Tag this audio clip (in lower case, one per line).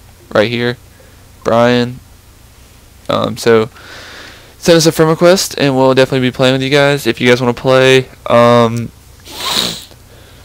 speech